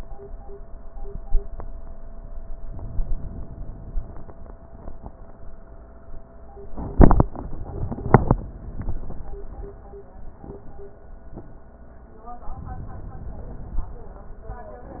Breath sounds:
2.69-4.28 s: inhalation
12.49-14.08 s: inhalation

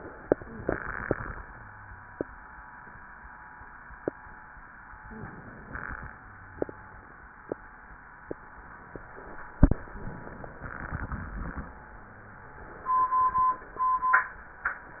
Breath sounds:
5.08-6.10 s: inhalation

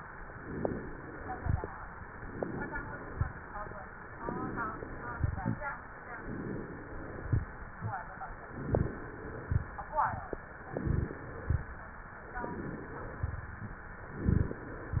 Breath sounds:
0.32-1.16 s: inhalation
0.32-1.16 s: crackles
1.23-1.73 s: exhalation
1.23-1.73 s: crackles
2.09-2.92 s: inhalation
2.09-2.92 s: crackles
2.96-3.53 s: exhalation
2.96-3.53 s: crackles
4.21-5.11 s: inhalation
4.21-5.11 s: crackles
5.12-5.69 s: exhalation
5.12-5.69 s: crackles
6.21-7.10 s: inhalation
6.21-7.10 s: crackles
7.17-7.67 s: exhalation
7.17-7.67 s: crackles
8.43-9.32 s: inhalation
8.43-9.32 s: crackles
9.35-9.85 s: exhalation
9.35-9.85 s: crackles
10.61-11.33 s: inhalation
10.61-11.33 s: crackles
11.35-11.84 s: exhalation
11.35-11.84 s: crackles
12.41-13.13 s: inhalation
12.41-13.13 s: crackles
13.21-13.70 s: exhalation
13.21-13.70 s: crackles
14.06-14.78 s: inhalation
14.06-14.78 s: crackles

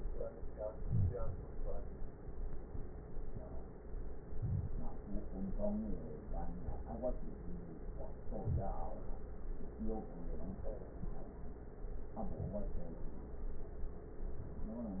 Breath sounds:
0.79-1.13 s: wheeze
0.79-1.48 s: inhalation
4.33-4.97 s: inhalation
4.33-4.97 s: crackles
8.28-8.81 s: inhalation
8.28-8.81 s: crackles
12.20-12.73 s: inhalation

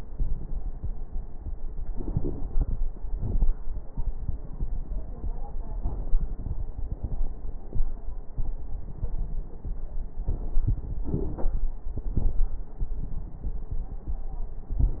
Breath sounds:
1.86-2.80 s: inhalation
1.86-2.80 s: crackles
3.13-3.50 s: exhalation
3.13-3.50 s: crackles
11.05-11.69 s: inhalation
11.05-11.69 s: crackles
11.94-12.41 s: exhalation
11.94-12.41 s: crackles

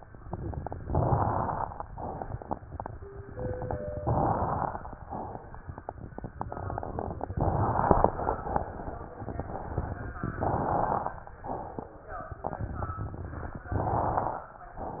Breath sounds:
0.82-1.73 s: inhalation
0.82-1.73 s: crackles
4.00-4.92 s: inhalation
4.00-4.92 s: crackles
7.36-8.27 s: inhalation
7.36-8.27 s: crackles
10.40-11.31 s: inhalation
10.40-11.31 s: crackles
13.74-14.65 s: inhalation
13.74-14.65 s: crackles

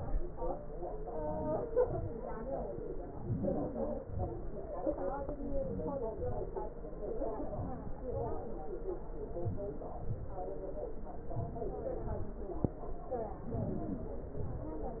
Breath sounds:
1.15-1.61 s: inhalation
1.79-2.14 s: exhalation
3.16-3.86 s: inhalation
4.03-4.49 s: exhalation
5.44-6.06 s: inhalation
6.15-6.61 s: exhalation
7.51-7.99 s: inhalation
8.10-8.47 s: exhalation
9.46-9.83 s: inhalation
10.05-10.42 s: exhalation
11.29-11.84 s: inhalation
12.05-12.40 s: exhalation

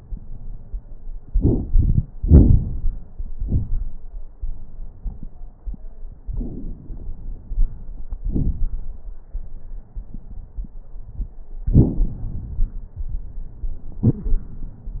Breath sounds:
6.31-7.98 s: inhalation
6.31-7.98 s: crackles
8.21-8.60 s: exhalation
8.21-8.60 s: crackles
11.70-12.94 s: inhalation
11.70-12.94 s: crackles
13.96-15.00 s: exhalation
13.96-15.00 s: crackles

